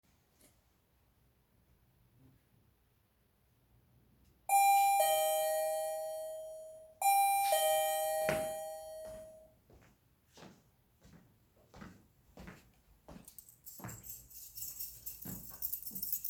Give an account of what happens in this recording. The doorbell rang, so I grabbed my keychain from the table. I walked toward the entrance to check who was there. The sound of the keys jangling was clear as I moved.